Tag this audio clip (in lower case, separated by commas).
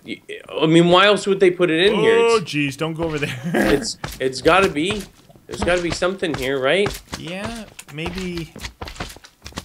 walk, speech